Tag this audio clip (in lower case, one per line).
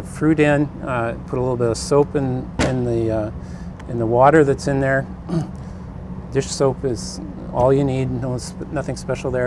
speech